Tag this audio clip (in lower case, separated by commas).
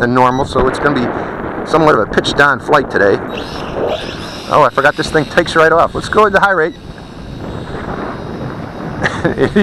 speech